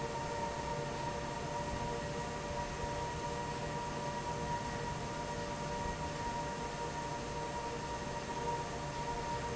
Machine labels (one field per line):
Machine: fan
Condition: normal